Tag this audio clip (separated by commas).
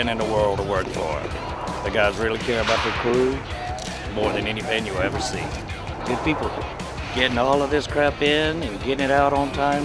Speech, Music